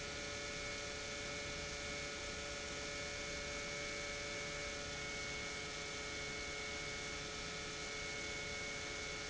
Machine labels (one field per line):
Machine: pump